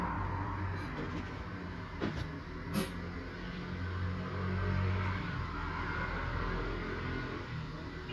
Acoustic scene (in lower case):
street